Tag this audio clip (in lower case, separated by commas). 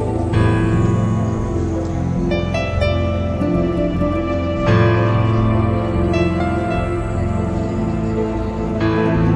guitar, plucked string instrument, music, musical instrument, strum